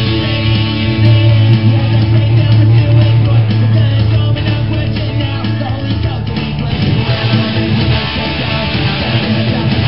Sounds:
Bass guitar, Plucked string instrument, Guitar, Music, Musical instrument

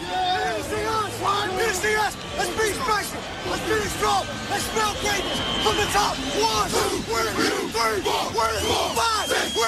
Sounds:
Speech

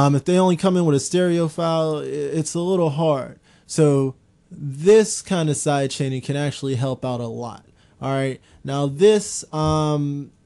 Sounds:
Speech

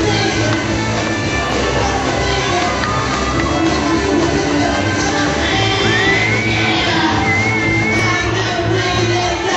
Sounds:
Music, Shout, Singing, inside a large room or hall

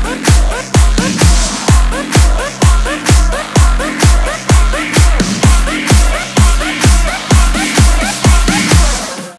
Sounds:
Music

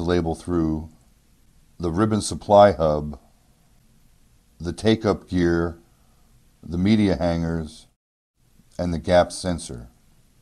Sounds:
Speech

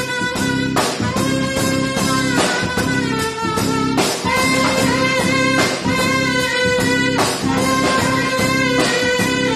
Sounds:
Brass instrument, Musical instrument, Saxophone, Music, Jazz

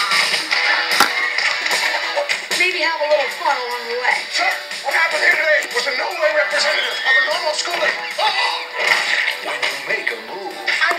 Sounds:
Music, Speech

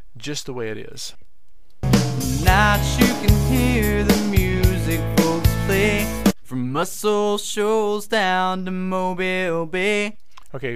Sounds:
Speech, Music

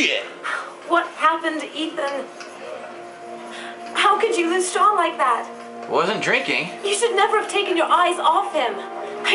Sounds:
Music, Speech

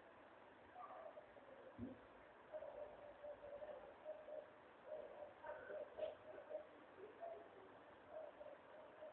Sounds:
Animal

